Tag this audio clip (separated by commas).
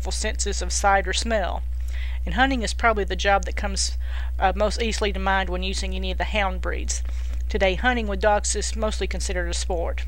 Speech